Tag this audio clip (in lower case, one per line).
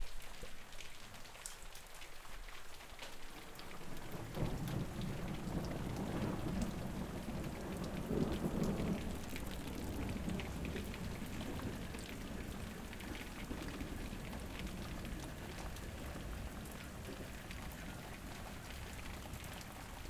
rain
thunder
thunderstorm
water